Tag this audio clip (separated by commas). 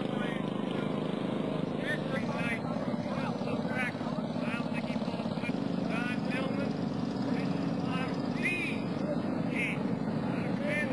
Speech